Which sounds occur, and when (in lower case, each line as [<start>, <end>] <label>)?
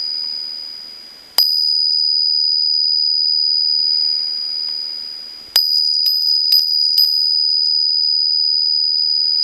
[0.00, 9.43] bicycle bell
[1.31, 1.43] generic impact sounds
[5.48, 5.60] generic impact sounds
[5.96, 6.09] generic impact sounds
[6.43, 6.56] generic impact sounds
[6.87, 7.04] generic impact sounds